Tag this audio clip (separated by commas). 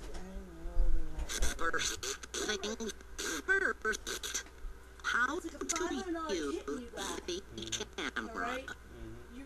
Speech